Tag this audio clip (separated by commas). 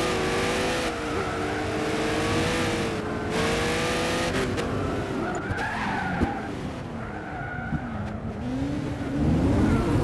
Vehicle, Motor vehicle (road), Car, Car passing by, Skidding